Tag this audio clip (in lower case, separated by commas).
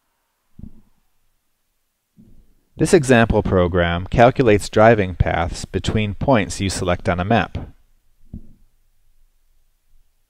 speech